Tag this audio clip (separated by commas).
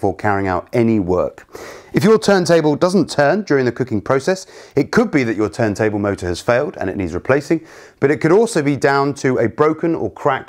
Speech